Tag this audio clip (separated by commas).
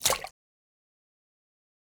Liquid, Splash